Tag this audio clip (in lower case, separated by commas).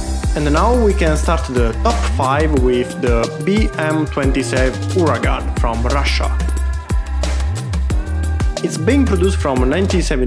firing cannon